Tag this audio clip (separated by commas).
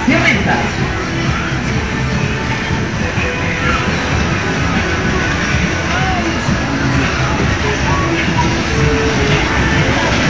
Speech, Music